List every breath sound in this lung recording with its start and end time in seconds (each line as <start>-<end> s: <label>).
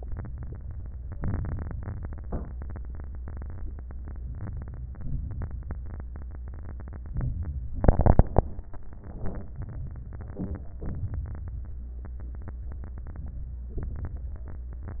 7.15-7.78 s: inhalation
7.15-7.78 s: crackles
10.82-11.69 s: inhalation
10.82-11.69 s: crackles